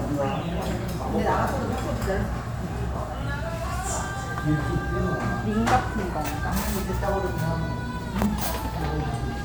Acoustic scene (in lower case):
restaurant